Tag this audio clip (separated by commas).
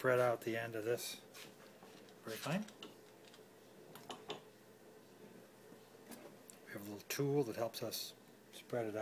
Speech